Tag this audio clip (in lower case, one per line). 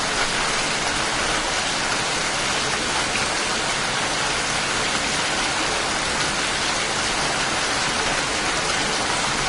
rain on surface
rain